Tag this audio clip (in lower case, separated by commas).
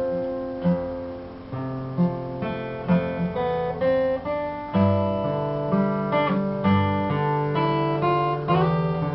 playing acoustic guitar, musical instrument, plucked string instrument, strum, music, acoustic guitar, guitar